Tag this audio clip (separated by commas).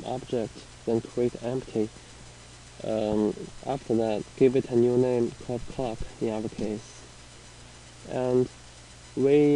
Speech